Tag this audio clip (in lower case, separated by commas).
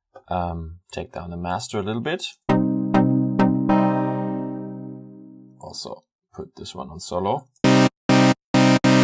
speech, music